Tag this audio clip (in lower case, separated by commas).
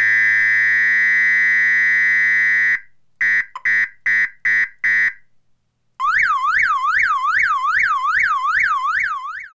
siren